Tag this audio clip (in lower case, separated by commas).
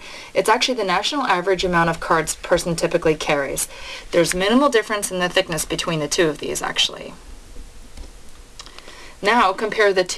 speech